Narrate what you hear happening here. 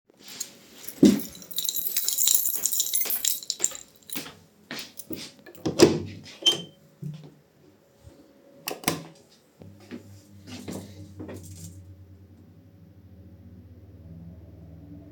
I was going to the bathroom and my keychain was dinging from my hips. Then I opened the door and turned on the light.